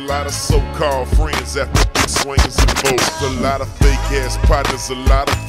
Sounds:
Music

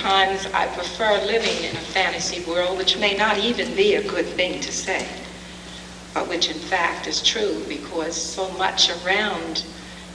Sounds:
Speech

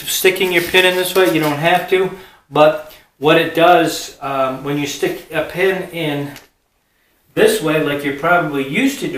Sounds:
Speech, inside a small room

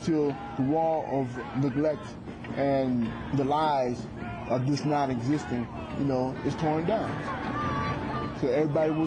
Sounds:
Speech, outside, urban or man-made

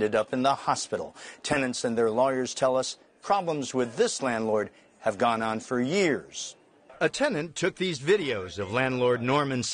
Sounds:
Speech

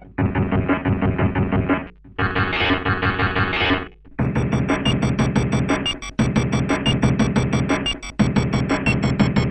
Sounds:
Sampler, Music

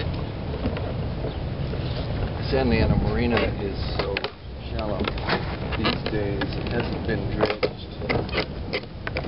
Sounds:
Speech

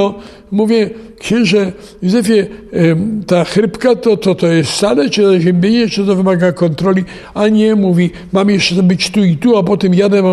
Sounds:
Speech

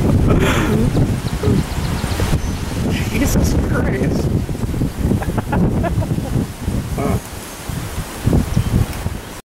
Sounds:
Speech

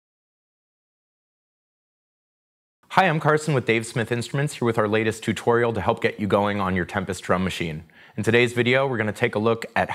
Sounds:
Speech

